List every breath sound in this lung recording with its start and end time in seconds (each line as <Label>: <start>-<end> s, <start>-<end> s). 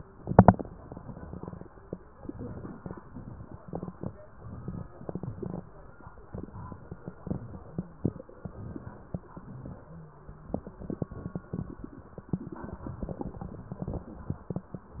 Inhalation: 2.22-2.98 s, 4.25-4.93 s, 6.33-7.03 s, 8.45-9.25 s
Exhalation: 2.99-3.69 s, 4.94-5.64 s, 7.14-8.05 s, 9.30-10.50 s
Wheeze: 7.53-8.05 s, 9.88-10.50 s